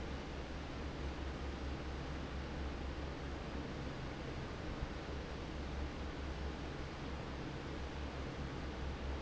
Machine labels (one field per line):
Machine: fan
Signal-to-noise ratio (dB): 0 dB